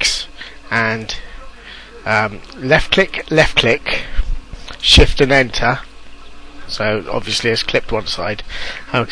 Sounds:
speech

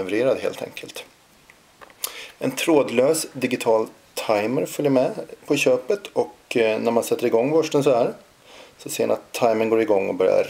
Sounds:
speech

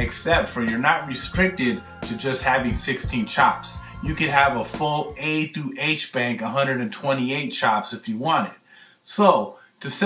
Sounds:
music
speech

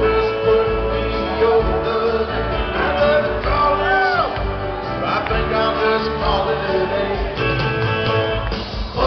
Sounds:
music

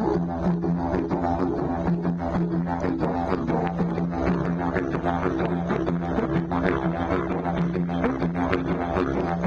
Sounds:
music
didgeridoo

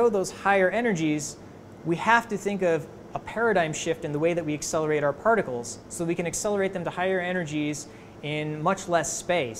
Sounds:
speech

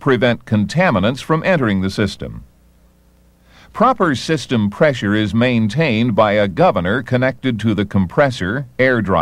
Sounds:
speech

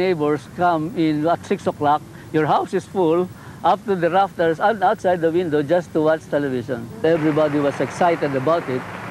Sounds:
speech

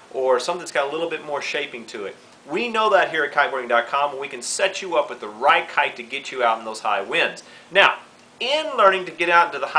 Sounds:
speech

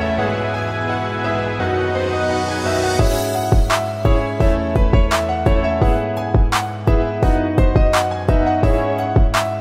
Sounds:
music

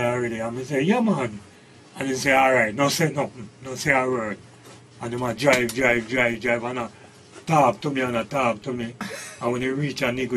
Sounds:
radio
speech

